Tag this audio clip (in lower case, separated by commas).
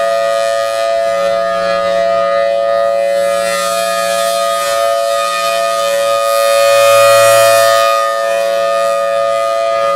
siren, civil defense siren